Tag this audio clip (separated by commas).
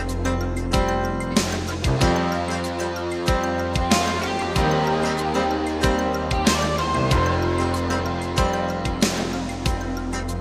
Music